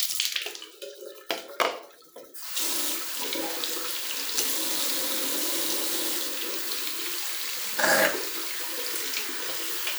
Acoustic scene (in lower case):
restroom